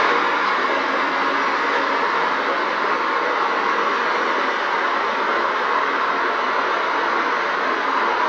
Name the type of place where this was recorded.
street